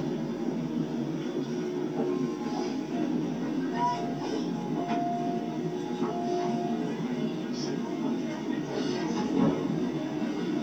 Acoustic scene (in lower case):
subway train